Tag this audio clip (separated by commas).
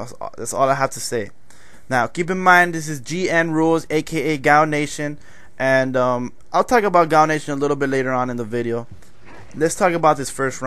Speech